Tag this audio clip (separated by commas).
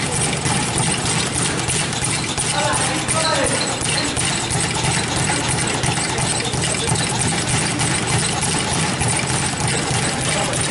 inside a large room or hall, Speech